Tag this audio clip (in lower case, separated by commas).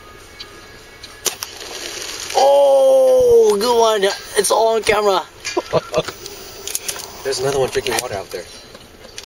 speech